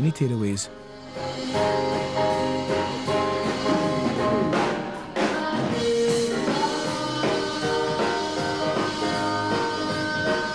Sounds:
Swing music, Speech, Music

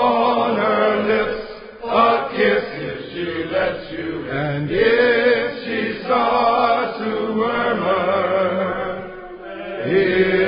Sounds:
Mantra

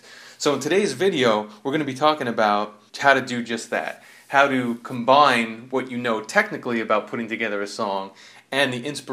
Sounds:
Speech

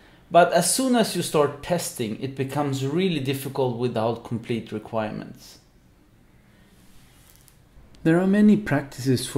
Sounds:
Speech

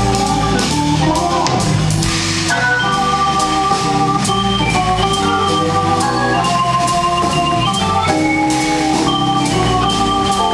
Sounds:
Jazz, Music

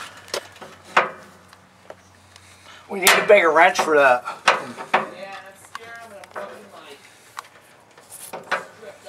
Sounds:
Speech

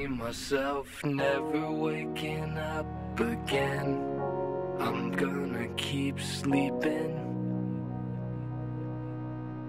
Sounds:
Music

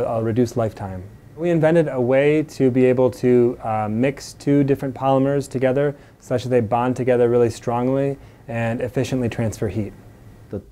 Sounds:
Speech

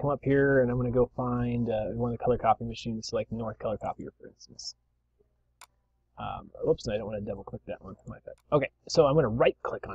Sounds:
Speech

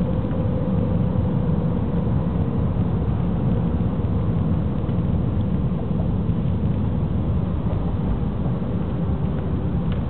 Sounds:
Vehicle

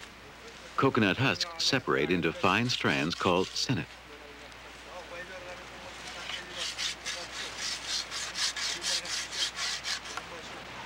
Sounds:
Speech

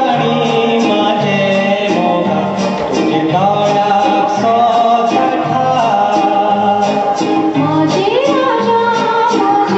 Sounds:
Music, inside a large room or hall

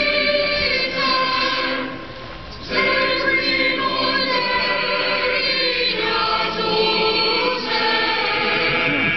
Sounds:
Speech, Choir, Music

